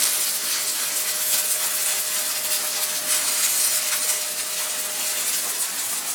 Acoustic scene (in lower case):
kitchen